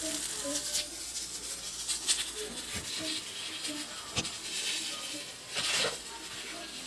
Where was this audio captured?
in a kitchen